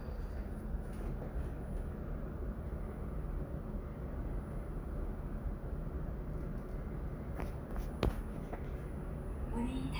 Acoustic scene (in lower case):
elevator